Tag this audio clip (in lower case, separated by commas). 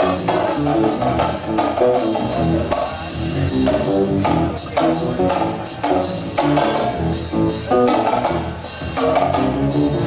music, acoustic guitar, strum, plucked string instrument, playing drum kit, drum kit, drum, guitar, musical instrument